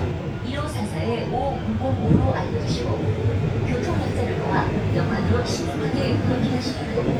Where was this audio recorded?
on a subway train